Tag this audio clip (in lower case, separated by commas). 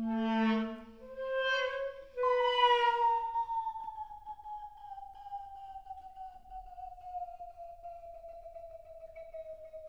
music, woodwind instrument